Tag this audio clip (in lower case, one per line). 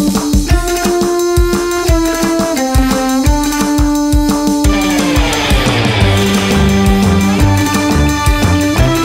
music